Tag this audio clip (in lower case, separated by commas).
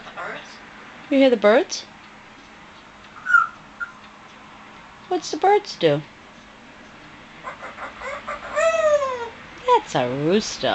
speech